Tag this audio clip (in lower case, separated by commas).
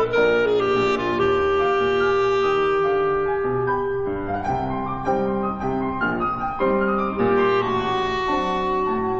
playing clarinet